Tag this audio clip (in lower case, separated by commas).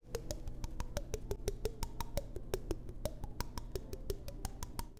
tap